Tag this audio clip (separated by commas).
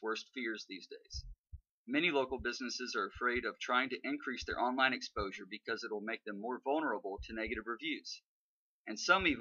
Speech